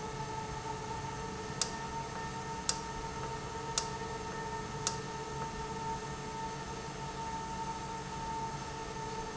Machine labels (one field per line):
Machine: valve